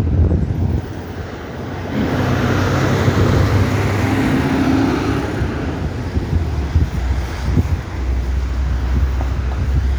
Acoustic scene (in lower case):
street